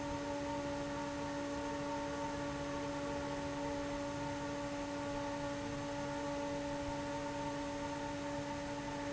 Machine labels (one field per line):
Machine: fan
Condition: abnormal